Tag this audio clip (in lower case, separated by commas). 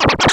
music, musical instrument, scratching (performance technique)